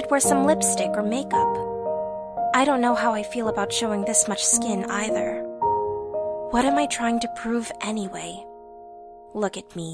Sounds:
speech, music

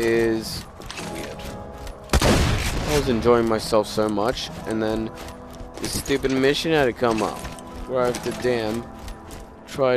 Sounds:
speech

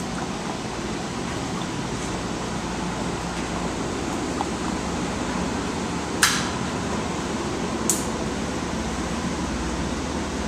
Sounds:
sailing ship

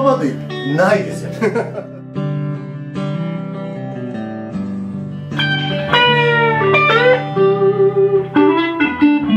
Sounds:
plucked string instrument, acoustic guitar, music, guitar, speech, electric guitar, musical instrument

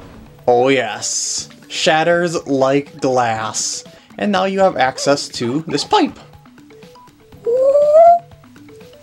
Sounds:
music, speech

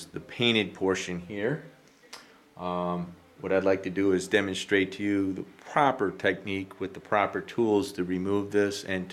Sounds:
speech

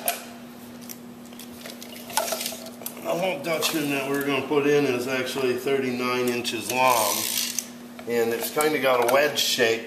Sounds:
speech

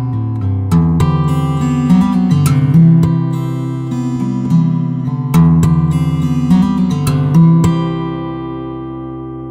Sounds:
musical instrument, plucked string instrument, acoustic guitar, strum, music

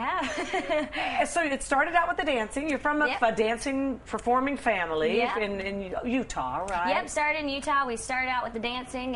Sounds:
speech

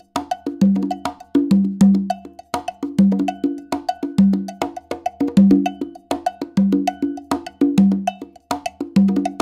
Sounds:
music

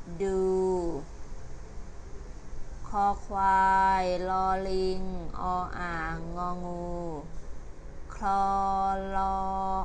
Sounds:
speech

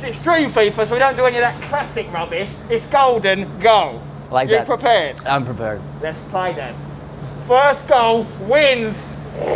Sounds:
speech, inside a small room

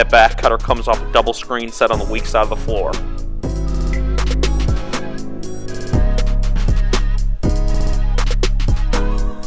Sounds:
music, speech

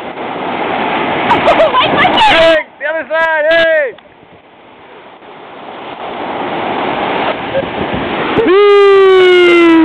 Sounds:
speech

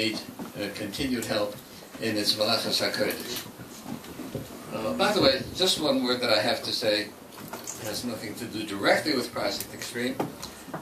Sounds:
speech, male speech

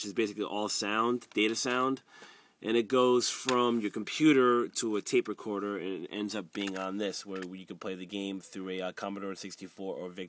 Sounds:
speech

